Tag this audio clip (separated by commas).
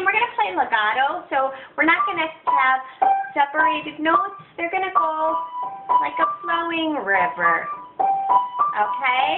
Speech, Music